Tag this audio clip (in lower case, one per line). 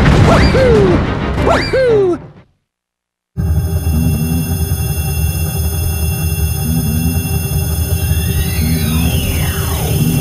music